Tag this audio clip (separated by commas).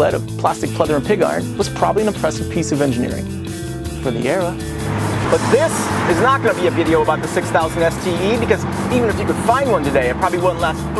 Music, Speech